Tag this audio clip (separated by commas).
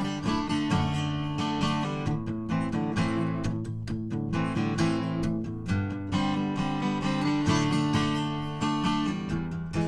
Music, Musical instrument, Acoustic guitar, Strum, Plucked string instrument, Guitar